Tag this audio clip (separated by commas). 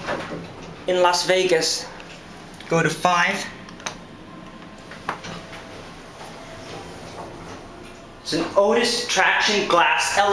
Speech